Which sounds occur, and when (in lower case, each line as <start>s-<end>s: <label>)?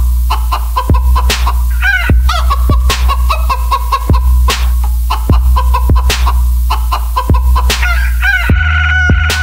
0.0s-9.4s: music
7.5s-7.6s: cluck
7.8s-9.4s: crowing